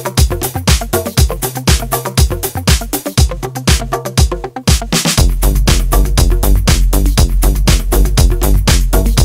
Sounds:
Electronic music, Music

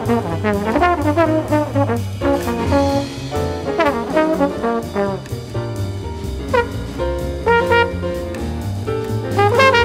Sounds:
Brass instrument, Trombone

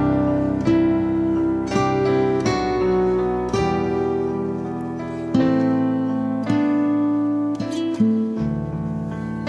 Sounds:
Music

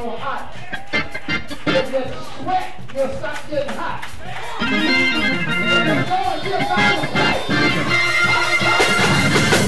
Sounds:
Funny music, Music, Speech

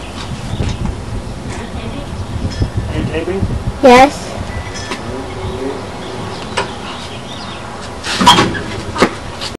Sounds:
Speech

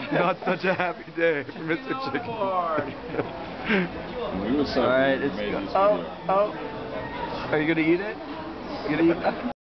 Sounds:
Speech

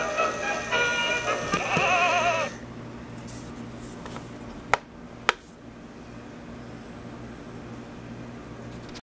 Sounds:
Music, Tick-tock

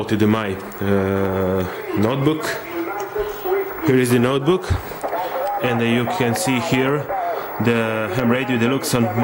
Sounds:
Speech

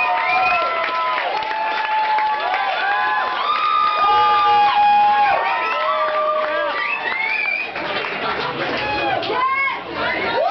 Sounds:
Speech

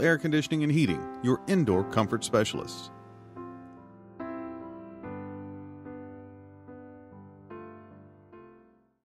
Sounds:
Speech, Music

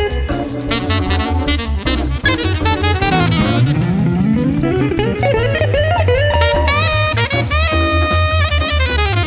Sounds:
playing electric guitar, Plucked string instrument, Music, Electric guitar, Musical instrument, Guitar

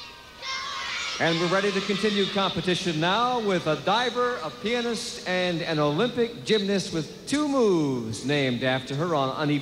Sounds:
Speech

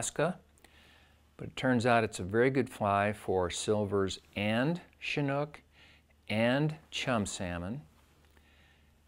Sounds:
Speech

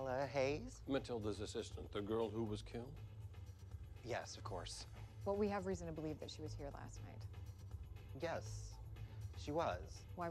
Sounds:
inside a small room, Speech

